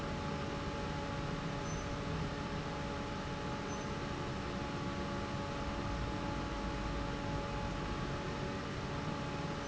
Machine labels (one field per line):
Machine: fan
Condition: normal